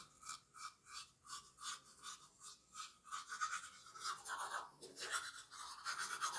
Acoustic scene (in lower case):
restroom